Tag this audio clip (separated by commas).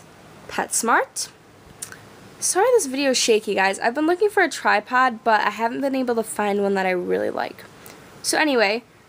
Speech